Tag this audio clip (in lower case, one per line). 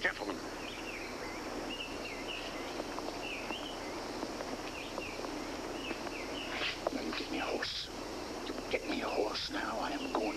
speech